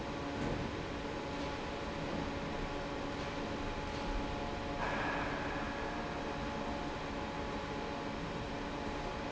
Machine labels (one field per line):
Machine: fan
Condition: normal